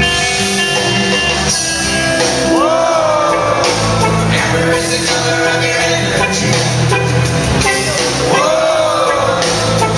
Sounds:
inside a large room or hall
singing
music

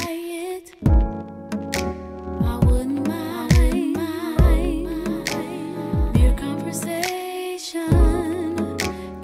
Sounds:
music

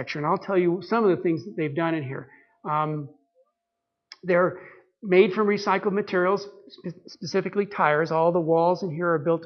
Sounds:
monologue

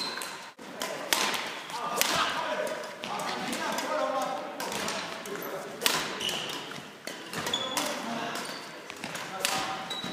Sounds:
playing badminton

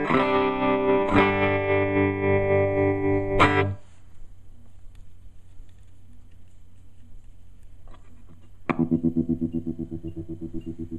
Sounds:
music
musical instrument
slide guitar

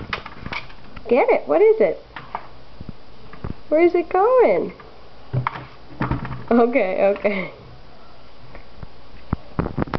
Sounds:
speech

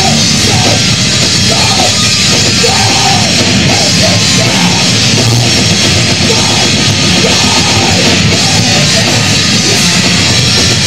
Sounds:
music

